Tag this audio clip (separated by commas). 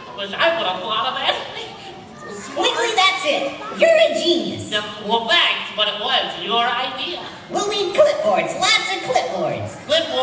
Speech